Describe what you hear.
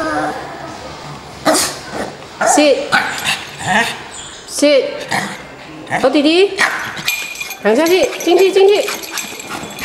A dog barks and the tags on its collar rattle together, a woman talks to the dog